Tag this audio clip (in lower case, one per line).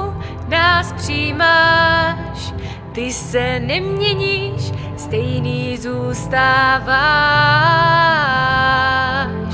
music